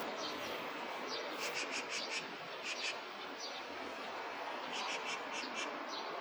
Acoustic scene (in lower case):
park